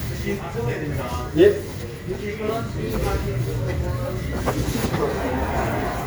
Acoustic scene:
street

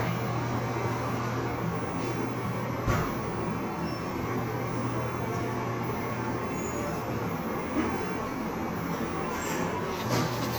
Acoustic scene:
cafe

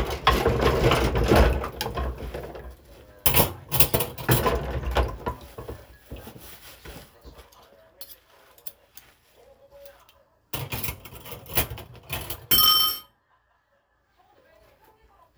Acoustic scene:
kitchen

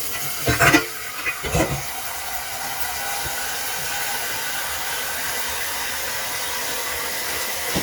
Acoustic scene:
kitchen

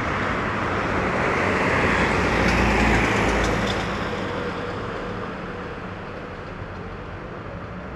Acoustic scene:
street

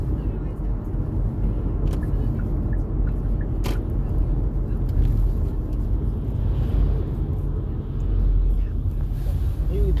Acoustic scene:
car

